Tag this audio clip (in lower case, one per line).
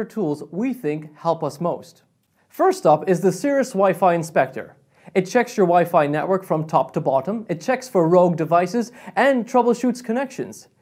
speech